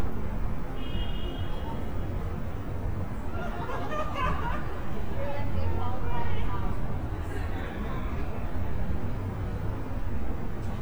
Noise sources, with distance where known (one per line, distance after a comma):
car horn, far
person or small group talking, near